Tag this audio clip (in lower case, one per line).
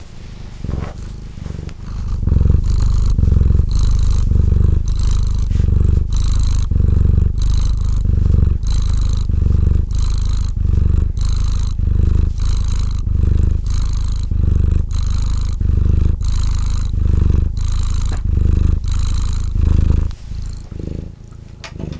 animal
cat
purr
domestic animals